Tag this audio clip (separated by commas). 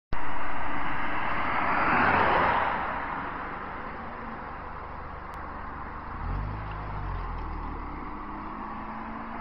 Car, Vehicle